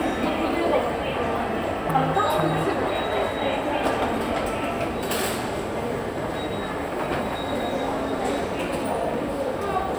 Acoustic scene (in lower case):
subway station